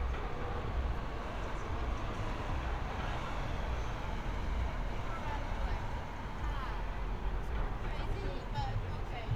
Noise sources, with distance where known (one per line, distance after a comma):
person or small group talking